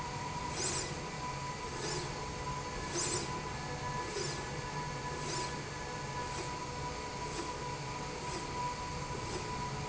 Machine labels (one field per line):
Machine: slide rail